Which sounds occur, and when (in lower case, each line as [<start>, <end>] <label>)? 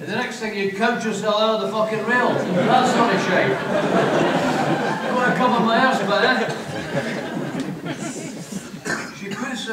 [0.00, 2.33] man speaking
[0.00, 9.72] background noise
[1.97, 8.81] crowd
[1.99, 8.78] laughter
[2.63, 3.51] man speaking
[4.97, 6.46] man speaking
[6.70, 7.22] man speaking
[8.83, 9.12] cough
[9.21, 9.72] man speaking
[9.29, 9.48] cough